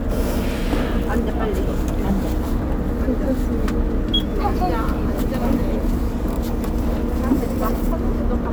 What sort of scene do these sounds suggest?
bus